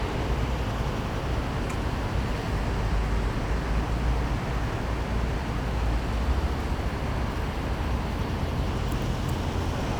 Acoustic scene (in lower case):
street